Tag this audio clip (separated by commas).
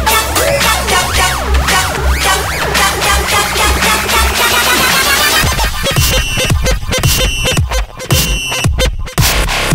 Music, Electronic music, Dubstep